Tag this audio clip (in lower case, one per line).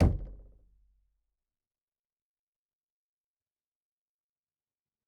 knock
door
domestic sounds